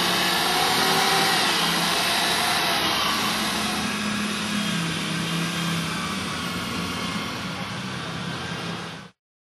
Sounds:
vehicle

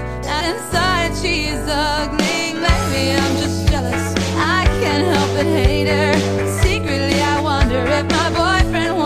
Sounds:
music

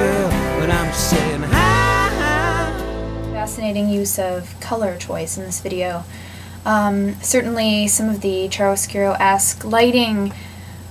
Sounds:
music
speech

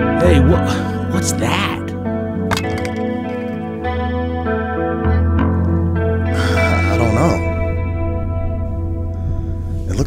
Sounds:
music
effects unit
speech

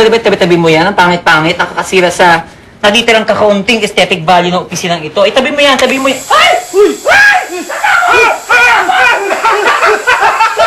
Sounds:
speech

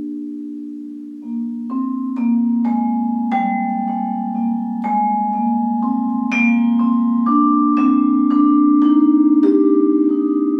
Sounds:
playing vibraphone

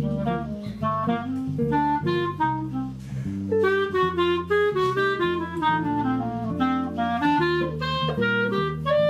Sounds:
jazz
musical instrument
music
guitar
plucked string instrument
playing clarinet
clarinet

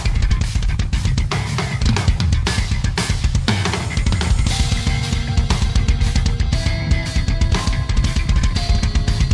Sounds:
playing double bass

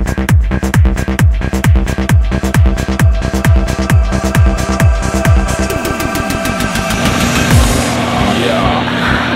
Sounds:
music
techno

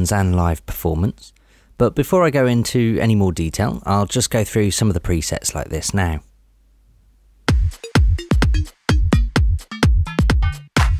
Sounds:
music
speech

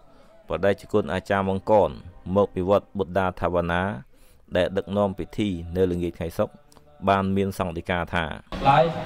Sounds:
music
speech

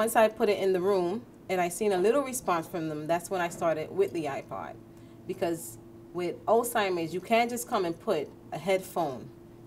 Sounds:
speech

